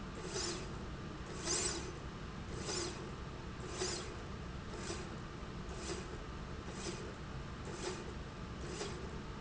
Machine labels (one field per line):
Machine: slide rail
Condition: normal